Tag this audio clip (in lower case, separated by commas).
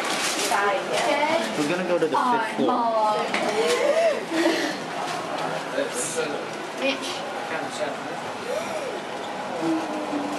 speech